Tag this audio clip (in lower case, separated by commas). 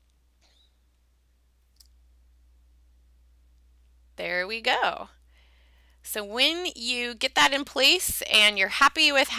inside a small room, silence, clicking, speech